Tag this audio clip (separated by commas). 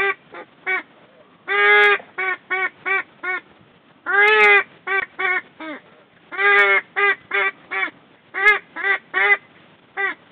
Quack